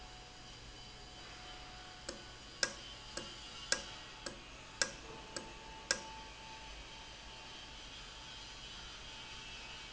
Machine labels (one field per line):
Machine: valve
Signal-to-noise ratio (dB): 6 dB